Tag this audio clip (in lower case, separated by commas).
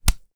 hammer, tools